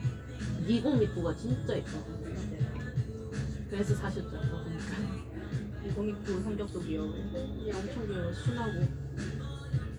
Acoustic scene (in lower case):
cafe